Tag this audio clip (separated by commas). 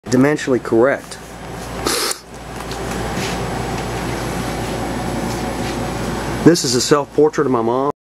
Speech